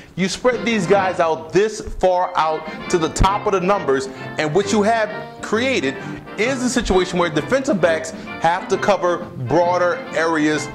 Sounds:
speech, music

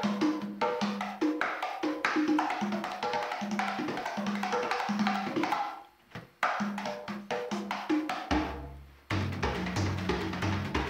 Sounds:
percussion, tabla, drum

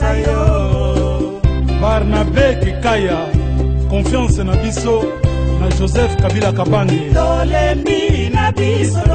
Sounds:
music

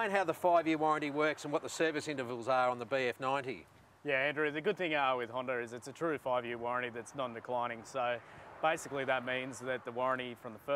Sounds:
speech

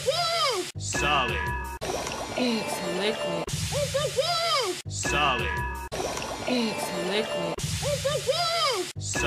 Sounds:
liquid, music, speech

